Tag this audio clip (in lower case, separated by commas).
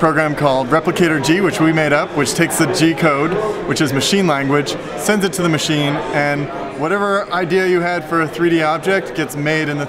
speech